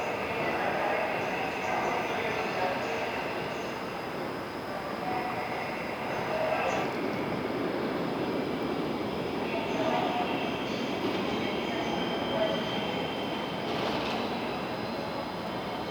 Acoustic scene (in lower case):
subway station